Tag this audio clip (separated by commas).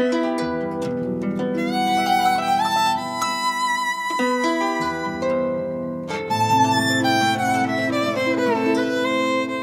Music, Musical instrument, fiddle